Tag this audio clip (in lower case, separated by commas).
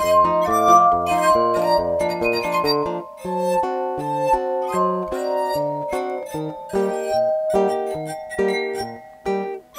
musical instrument, music